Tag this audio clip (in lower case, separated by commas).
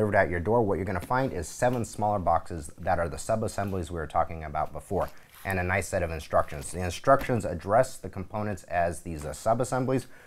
speech